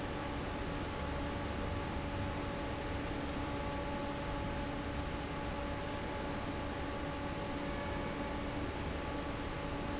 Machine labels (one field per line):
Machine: fan